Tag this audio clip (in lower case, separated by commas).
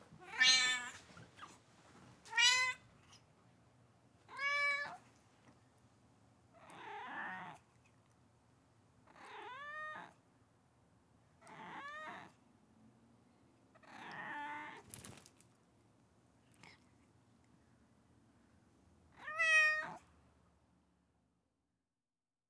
cat, animal, domestic animals, meow